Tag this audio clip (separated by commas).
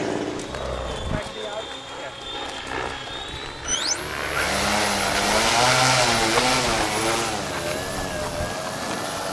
Vehicle